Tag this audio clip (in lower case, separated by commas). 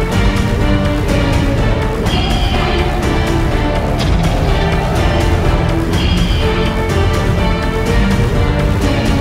music